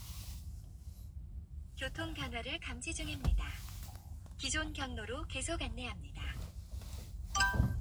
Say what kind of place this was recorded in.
car